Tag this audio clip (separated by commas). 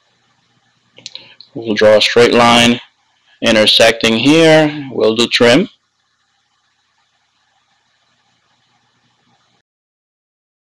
Speech